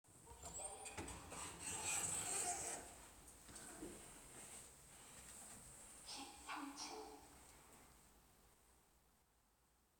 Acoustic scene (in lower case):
elevator